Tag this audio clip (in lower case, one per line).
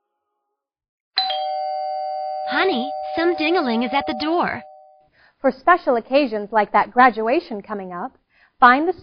doorbell
speech